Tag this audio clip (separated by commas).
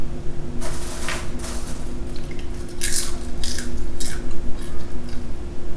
mastication